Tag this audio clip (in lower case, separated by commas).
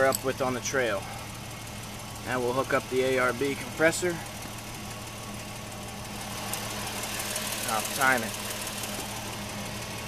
speech